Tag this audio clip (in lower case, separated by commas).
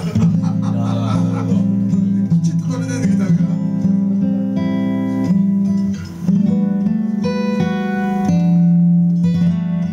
music, musical instrument, electric guitar, acoustic guitar, guitar, plucked string instrument, speech